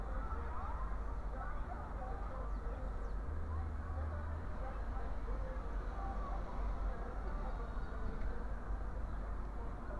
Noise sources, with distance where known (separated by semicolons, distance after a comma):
music from an unclear source